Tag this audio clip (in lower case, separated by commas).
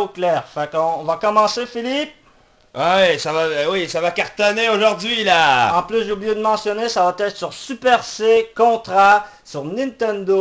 speech